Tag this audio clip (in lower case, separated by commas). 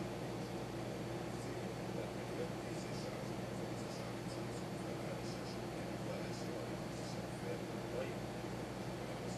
speech